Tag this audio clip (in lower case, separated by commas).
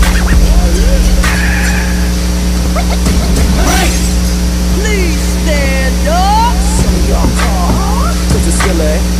music, speech, white noise